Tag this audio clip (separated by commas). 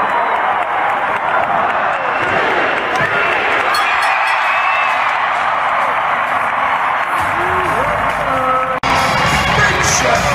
Music, Speech, inside a large room or hall